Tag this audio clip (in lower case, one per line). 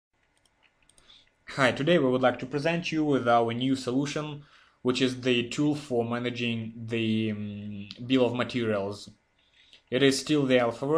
speech